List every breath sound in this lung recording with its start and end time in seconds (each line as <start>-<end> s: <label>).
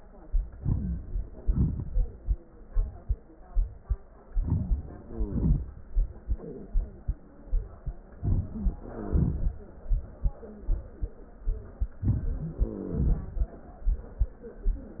0.56-1.35 s: inhalation
1.36-2.48 s: exhalation
4.31-5.06 s: inhalation
5.03-6.21 s: exhalation
5.04-5.37 s: wheeze
8.18-8.70 s: inhalation
8.53-9.39 s: wheeze
8.71-9.92 s: exhalation
12.00-12.64 s: inhalation
12.44-13.19 s: wheeze
12.63-13.57 s: exhalation